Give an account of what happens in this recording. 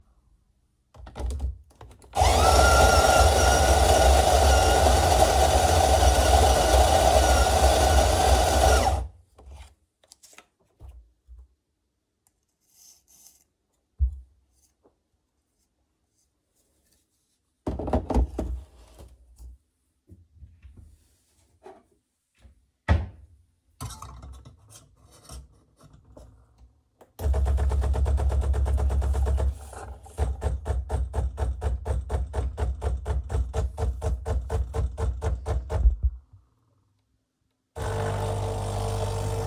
I ground the coffee beans, tamped the grounds into the portafilter, locked it into the machine. I took a cup and brewed a shot of espresso.